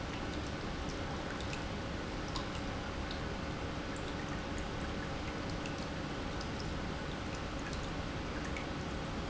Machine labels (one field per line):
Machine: pump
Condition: normal